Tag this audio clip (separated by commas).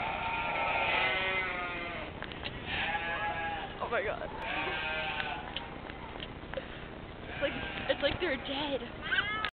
Speech